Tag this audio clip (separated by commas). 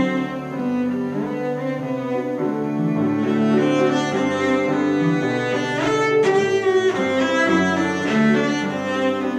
Bowed string instrument, Double bass, Cello, Music, Classical music, Musical instrument